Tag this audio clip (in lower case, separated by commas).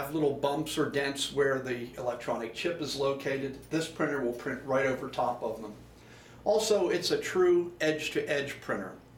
speech